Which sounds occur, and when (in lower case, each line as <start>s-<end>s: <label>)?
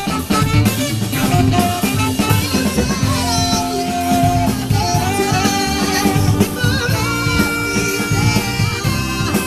0.0s-9.4s: music
2.0s-4.0s: female singing
4.5s-9.4s: female singing